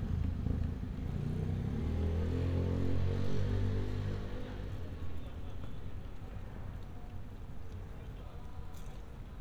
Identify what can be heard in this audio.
medium-sounding engine